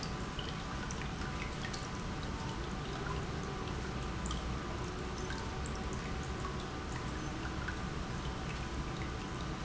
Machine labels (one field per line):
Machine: pump